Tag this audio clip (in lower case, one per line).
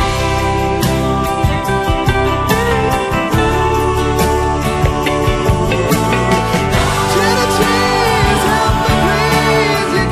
music